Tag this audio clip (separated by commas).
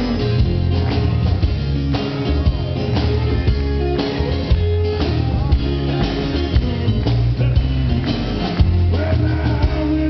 Male singing, Music